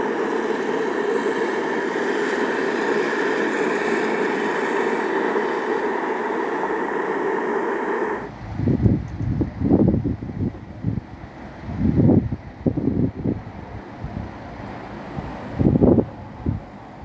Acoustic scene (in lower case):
street